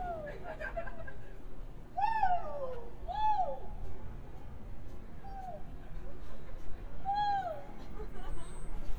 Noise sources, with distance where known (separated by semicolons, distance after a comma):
person or small group shouting, near